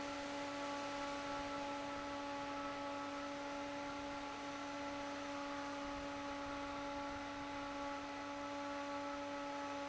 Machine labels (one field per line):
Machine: fan